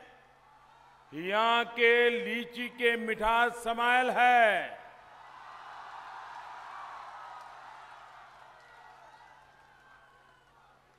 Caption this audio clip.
A man is speaking to an audience